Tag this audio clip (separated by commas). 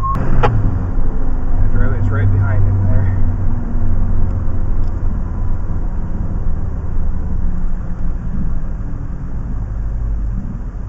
Speech